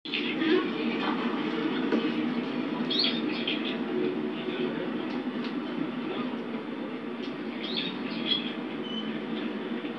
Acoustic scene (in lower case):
park